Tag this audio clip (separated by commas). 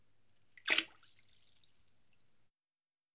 Splash, Liquid